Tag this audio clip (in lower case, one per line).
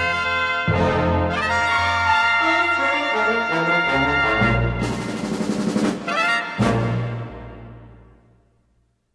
musical instrument
music
trumpet
brass instrument